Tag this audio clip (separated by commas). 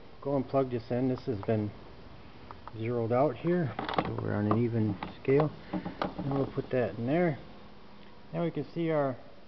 Speech